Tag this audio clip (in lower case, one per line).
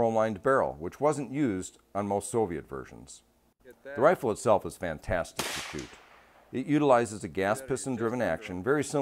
speech
outside, rural or natural